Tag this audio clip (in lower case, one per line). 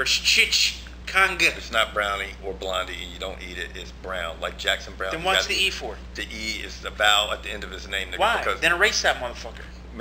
speech